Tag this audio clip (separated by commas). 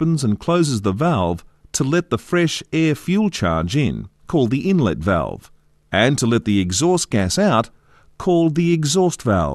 Speech